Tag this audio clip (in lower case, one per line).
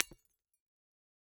glass
shatter